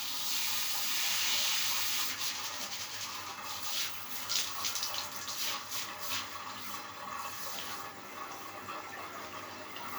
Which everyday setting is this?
restroom